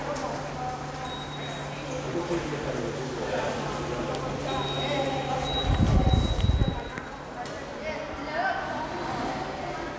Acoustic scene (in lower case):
subway station